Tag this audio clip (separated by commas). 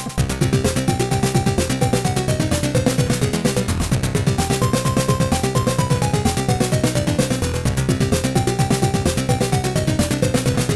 Video game music, Soundtrack music, Music